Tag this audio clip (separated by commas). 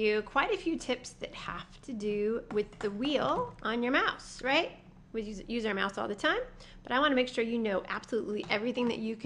Speech